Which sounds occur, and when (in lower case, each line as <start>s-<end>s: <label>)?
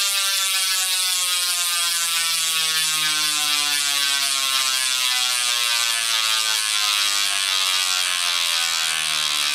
0.0s-9.5s: pawl